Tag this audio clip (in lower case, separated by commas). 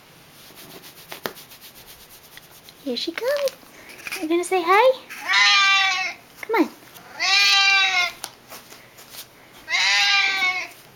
speech